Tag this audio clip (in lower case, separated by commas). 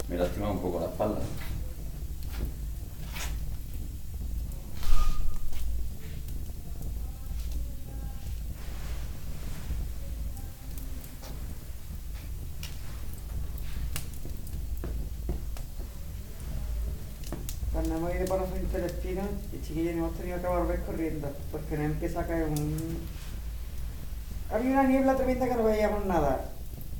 conversation, speech, human voice